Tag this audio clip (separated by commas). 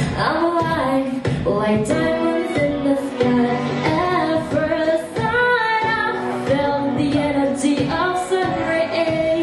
inside a large room or hall, Music